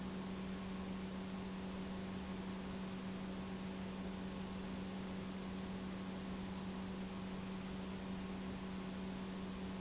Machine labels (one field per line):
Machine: pump